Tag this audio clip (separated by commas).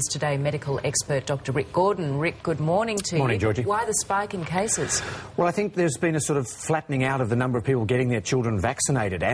Speech